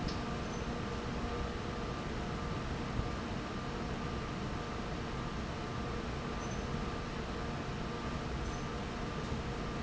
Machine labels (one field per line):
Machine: fan